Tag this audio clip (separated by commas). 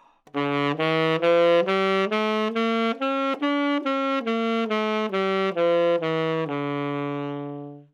Music, Musical instrument, woodwind instrument